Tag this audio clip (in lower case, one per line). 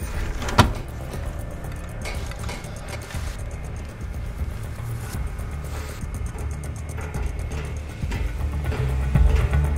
music